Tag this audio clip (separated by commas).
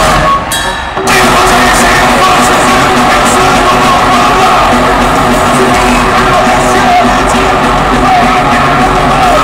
Music, Cheering